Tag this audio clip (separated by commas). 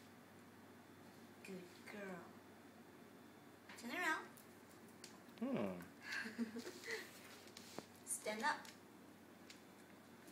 Speech